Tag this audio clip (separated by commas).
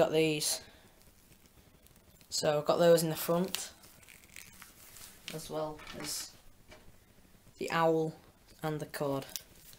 inside a small room, Speech